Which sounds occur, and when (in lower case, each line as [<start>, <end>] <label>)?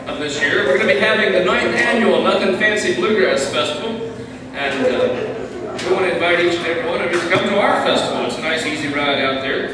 [0.01, 9.73] background noise
[0.03, 3.98] male speech
[4.52, 5.52] male speech
[5.69, 9.73] male speech